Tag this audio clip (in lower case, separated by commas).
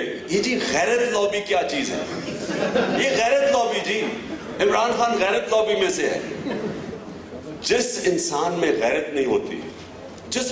speech, male speech, monologue